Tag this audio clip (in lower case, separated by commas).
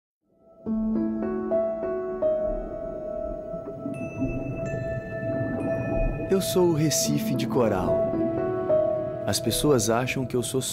music, speech